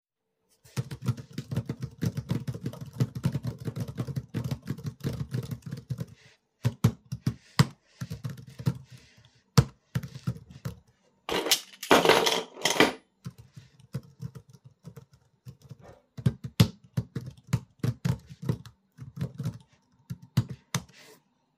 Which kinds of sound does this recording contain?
keyboard typing, keys